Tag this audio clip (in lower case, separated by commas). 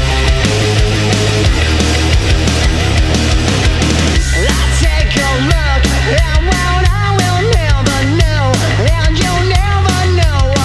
music